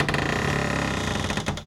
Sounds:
Door, Cupboard open or close, Domestic sounds

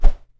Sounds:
swoosh

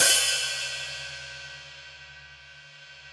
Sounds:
Musical instrument, Percussion, Cymbal, Music, Hi-hat

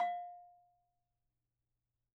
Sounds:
Bell

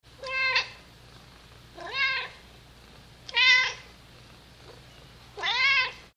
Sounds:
Meow, Domestic animals, Animal, Cat

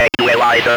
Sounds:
Human voice, Speech

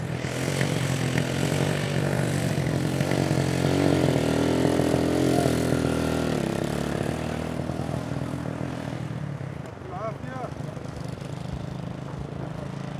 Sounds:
Vehicle, Motorcycle, Motor vehicle (road)

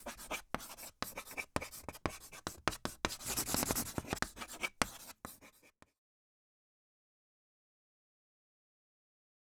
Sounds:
Writing, home sounds

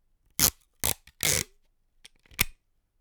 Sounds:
duct tape, Domestic sounds

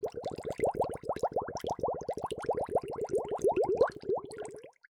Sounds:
Water, Gurgling

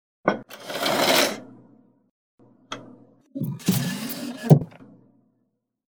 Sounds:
home sounds, Drawer open or close

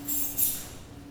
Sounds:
Keys jangling, Domestic sounds

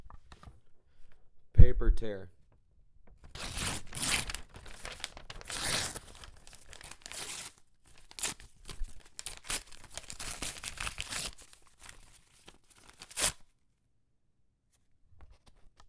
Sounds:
Tearing

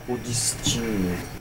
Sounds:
man speaking, Speech, Human voice

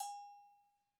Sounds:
Bell

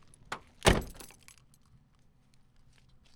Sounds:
Car, Motor vehicle (road), Vehicle

